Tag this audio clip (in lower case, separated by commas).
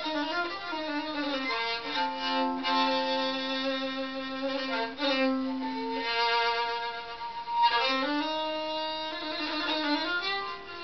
fiddle, musical instrument, music